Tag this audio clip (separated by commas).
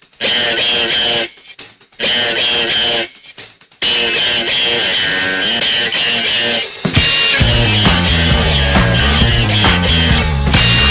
Music